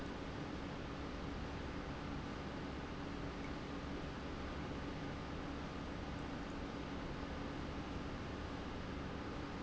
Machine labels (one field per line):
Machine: pump